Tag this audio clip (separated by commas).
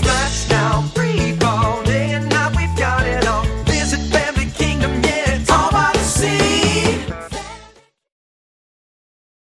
Music